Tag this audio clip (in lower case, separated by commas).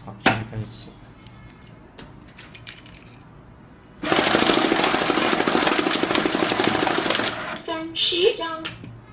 jackhammer